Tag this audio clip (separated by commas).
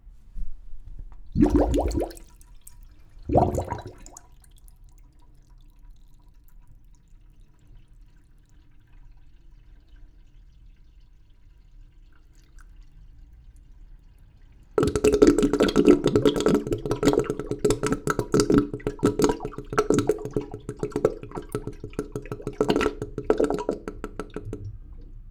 Vehicle, Pour, Sink (filling or washing), home sounds, dribble, Water, Gurgling, Car, Motor vehicle (road), Liquid, Car passing by